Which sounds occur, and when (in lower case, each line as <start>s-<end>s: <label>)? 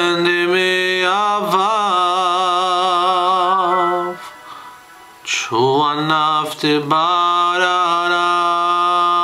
0.0s-4.1s: male singing
0.0s-9.2s: background noise
3.7s-5.2s: music
4.1s-4.6s: breathing
4.2s-4.7s: speech
4.9s-5.5s: speech
5.2s-9.2s: male singing